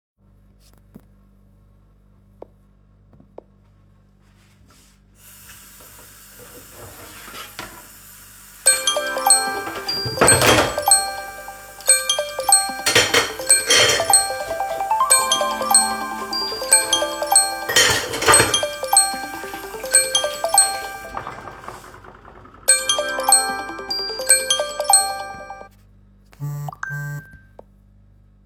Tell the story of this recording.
I was washing the dishes. Someone called me.